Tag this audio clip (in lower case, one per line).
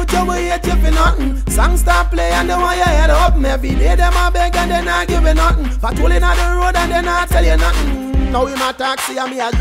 music